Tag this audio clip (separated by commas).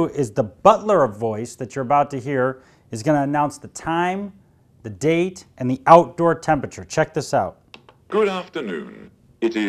Speech